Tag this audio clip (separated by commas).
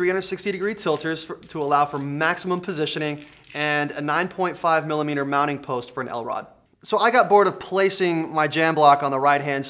Speech